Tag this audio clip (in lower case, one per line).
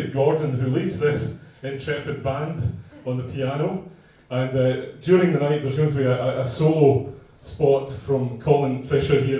speech